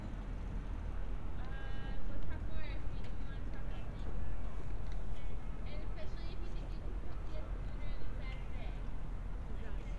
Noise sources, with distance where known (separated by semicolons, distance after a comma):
person or small group talking, far